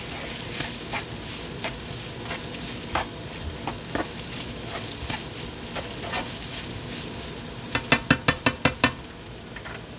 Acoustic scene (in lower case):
kitchen